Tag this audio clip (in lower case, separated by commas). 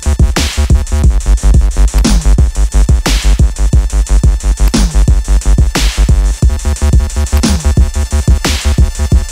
sampler, drum machine